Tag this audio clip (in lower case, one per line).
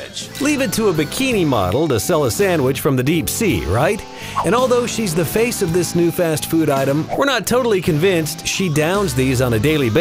music
speech